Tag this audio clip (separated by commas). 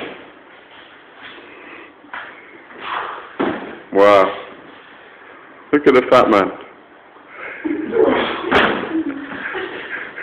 Speech, inside a small room